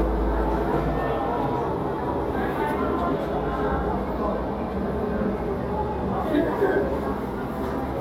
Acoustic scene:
crowded indoor space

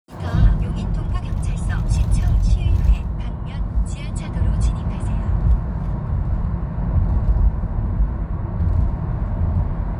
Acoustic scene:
car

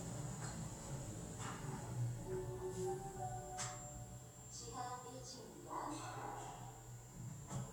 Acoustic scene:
elevator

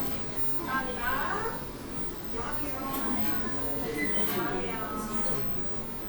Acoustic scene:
cafe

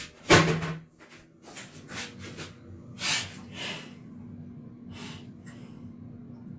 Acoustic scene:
restroom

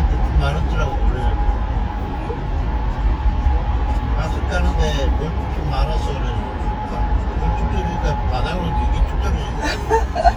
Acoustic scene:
car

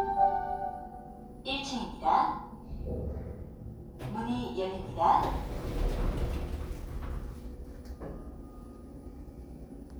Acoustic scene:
elevator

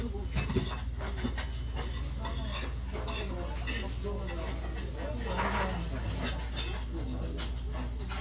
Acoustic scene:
restaurant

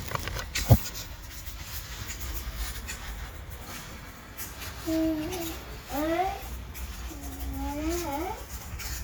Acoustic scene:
park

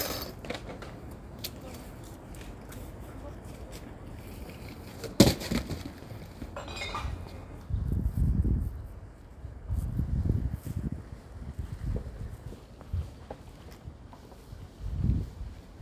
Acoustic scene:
residential area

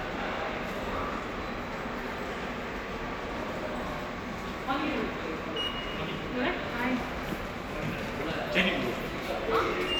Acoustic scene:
subway station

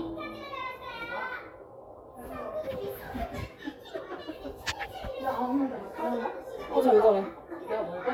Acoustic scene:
crowded indoor space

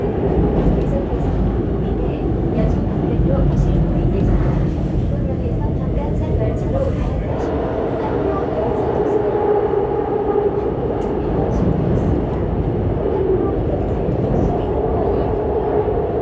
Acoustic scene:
subway train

